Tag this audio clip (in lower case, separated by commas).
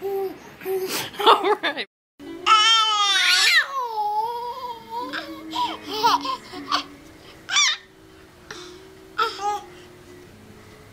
baby laughter